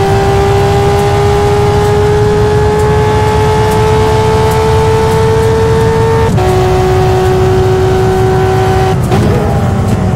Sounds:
Vehicle, Car

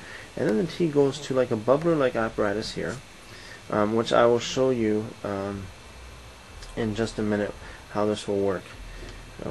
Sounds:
Speech

